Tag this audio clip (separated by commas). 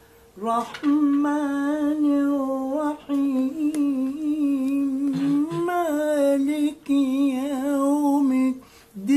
inside a small room